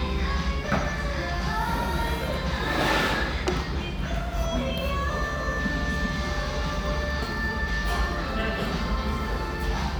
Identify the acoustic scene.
restaurant